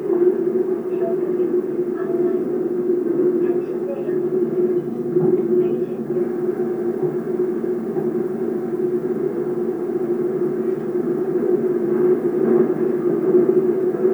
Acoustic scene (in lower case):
subway train